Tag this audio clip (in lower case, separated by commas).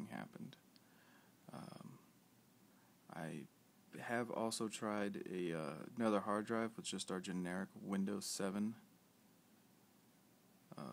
speech